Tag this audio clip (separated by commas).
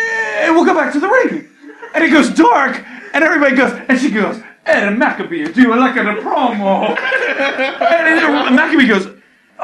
inside a small room, Speech